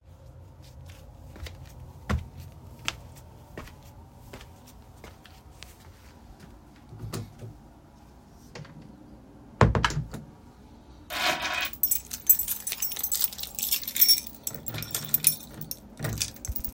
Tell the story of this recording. I walked out of my apartment, closed the door, took the keys, and locked the door.